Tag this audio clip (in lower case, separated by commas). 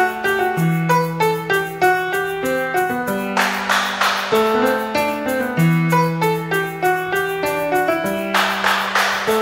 music, electric piano